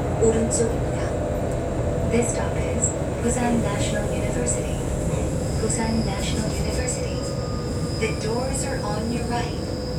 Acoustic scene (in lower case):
subway train